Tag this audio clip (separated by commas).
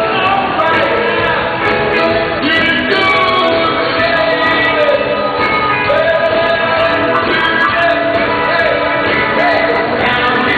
Music